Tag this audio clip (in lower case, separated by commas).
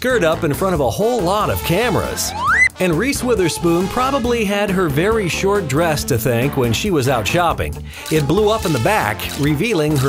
music, speech